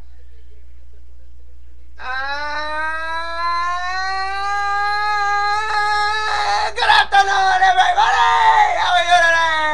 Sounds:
speech

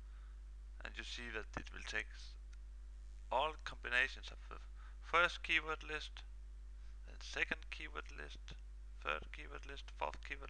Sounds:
speech

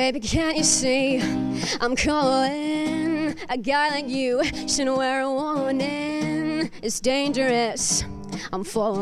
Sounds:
music

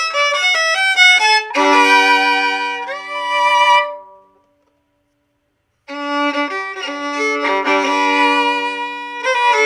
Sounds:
music, musical instrument, violin

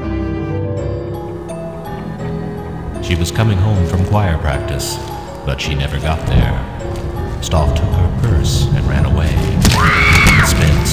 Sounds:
speech, music, scary music

